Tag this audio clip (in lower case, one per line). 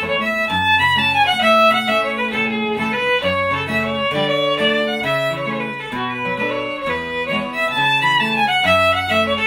music
musical instrument
violin